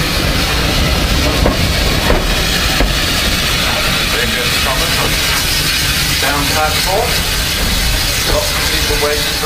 Steam is hissing and a man speaks